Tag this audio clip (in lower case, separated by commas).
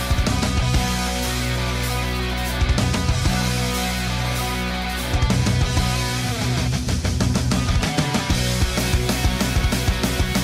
musical instrument, guitar, plucked string instrument, strum, bass guitar, music